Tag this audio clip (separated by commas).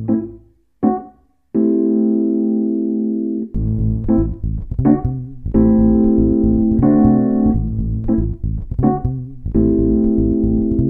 Synthesizer